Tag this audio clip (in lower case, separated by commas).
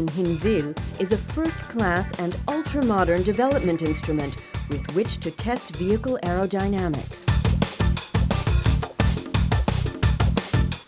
speech, music